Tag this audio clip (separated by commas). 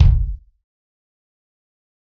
Music, Percussion, Bass drum, Drum, Musical instrument